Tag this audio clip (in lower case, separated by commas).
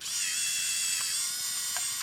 camera, mechanisms